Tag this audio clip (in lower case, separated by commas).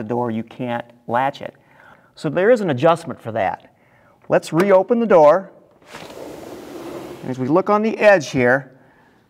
speech, door, sliding door